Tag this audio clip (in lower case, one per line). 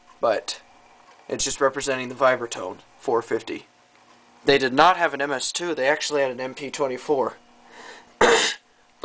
speech